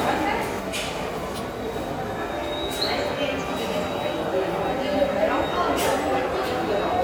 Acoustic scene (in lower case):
subway station